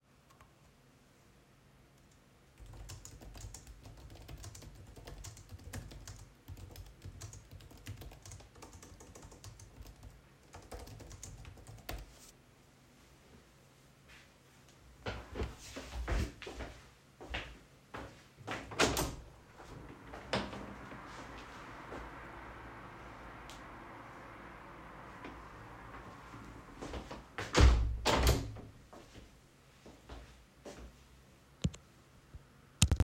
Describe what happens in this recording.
I placed the recording device on the desk. I sat down and typed on the keyboard steadily for several seconds. I then got up, walked to the window, and opened it slowly and deliberately. I then closed the window again before stopping the recording.